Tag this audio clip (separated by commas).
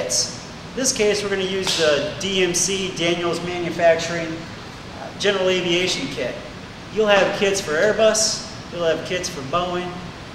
Speech